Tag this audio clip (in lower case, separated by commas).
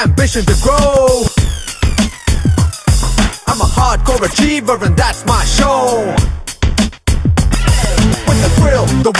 music